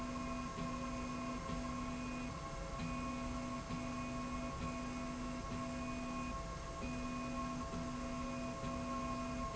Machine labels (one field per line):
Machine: slide rail